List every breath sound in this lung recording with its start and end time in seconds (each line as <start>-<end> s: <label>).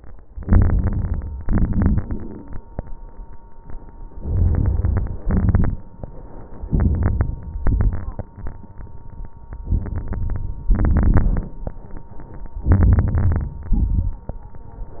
0.33-1.38 s: inhalation
0.33-1.38 s: crackles
1.46-2.51 s: exhalation
1.46-2.65 s: inhalation
1.46-2.65 s: crackles
4.06-5.24 s: crackles
4.09-5.28 s: inhalation
5.24-6.02 s: crackles
5.28-6.02 s: exhalation
6.66-7.51 s: inhalation
6.68-7.53 s: crackles
7.57-8.43 s: crackles
7.59-8.44 s: exhalation
9.54-10.68 s: crackles
9.60-10.70 s: inhalation
10.69-11.80 s: exhalation
10.69-11.83 s: crackles
12.62-13.67 s: crackles
12.64-13.69 s: inhalation
13.70-14.42 s: crackles
13.71-14.42 s: exhalation